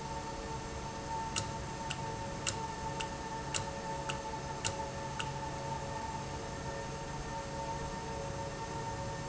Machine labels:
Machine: valve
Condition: normal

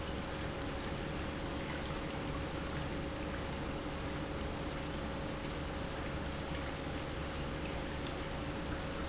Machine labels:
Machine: pump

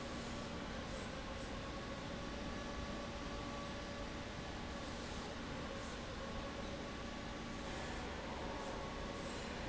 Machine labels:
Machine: fan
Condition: abnormal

